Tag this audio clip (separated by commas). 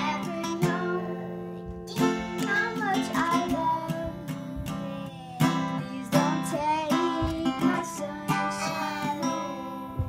child singing